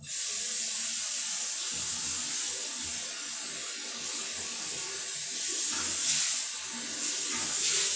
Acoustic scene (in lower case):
restroom